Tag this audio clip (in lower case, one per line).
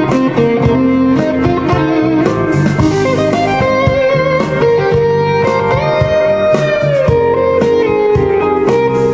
musical instrument
guitar
music
inside a small room
plucked string instrument